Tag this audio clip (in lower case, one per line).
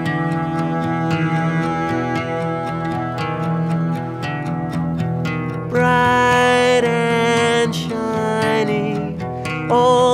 music